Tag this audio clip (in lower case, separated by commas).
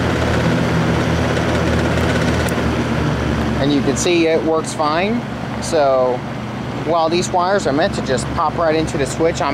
speech, mechanical fan